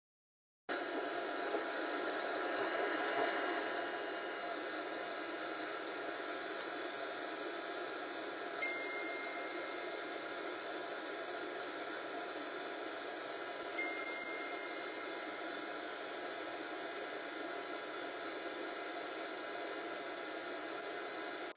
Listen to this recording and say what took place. I turned on the vacuum cleaner and while it was running I got notifications on my phone.